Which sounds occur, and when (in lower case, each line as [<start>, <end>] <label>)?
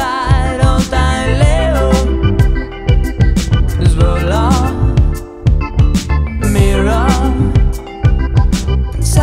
[0.01, 9.22] music
[0.01, 2.07] male singing
[3.75, 4.76] male singing
[6.44, 7.61] male singing